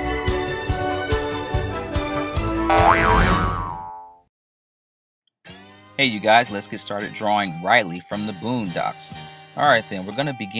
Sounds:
music

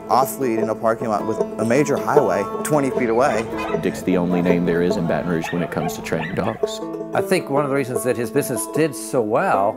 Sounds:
speech, bow-wow, animal, yip, whimper (dog), music, dog, pets

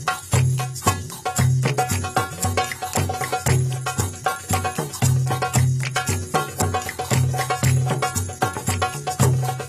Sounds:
music, traditional music

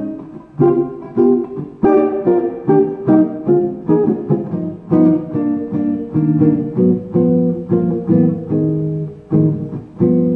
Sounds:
plucked string instrument, electric guitar, music, musical instrument, blues, guitar

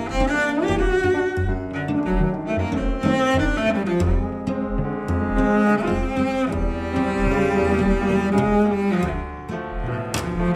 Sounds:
musical instrument, double bass, music, cello, bowed string instrument

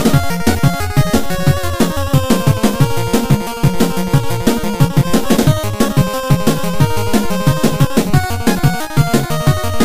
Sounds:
music

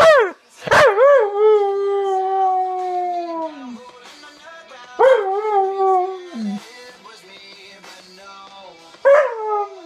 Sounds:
inside a small room, singing, bark, music, canids, domestic animals

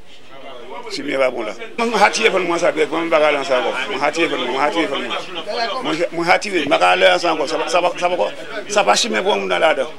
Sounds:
speech

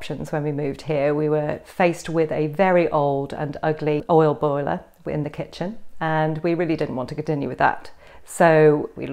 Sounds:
speech

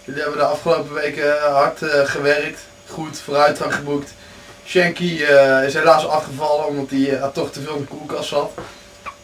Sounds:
speech

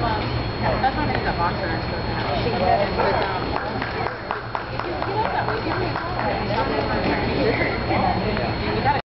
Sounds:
speech

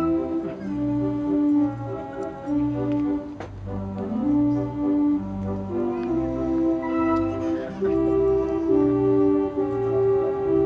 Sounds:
piano, musical instrument, music, keyboard (musical), organ

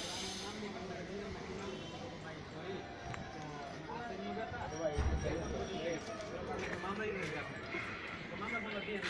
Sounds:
speech

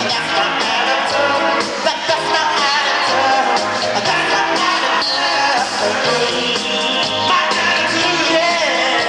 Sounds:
male singing, music

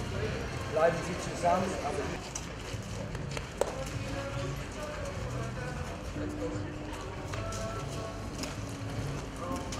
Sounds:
animal, clip-clop, horse, music, speech

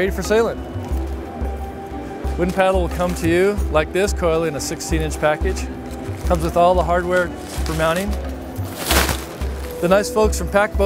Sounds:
speech, music

